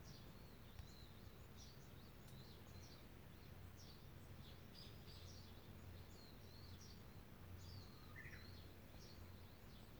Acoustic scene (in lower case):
park